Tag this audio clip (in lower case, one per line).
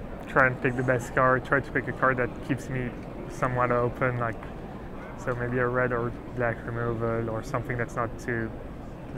speech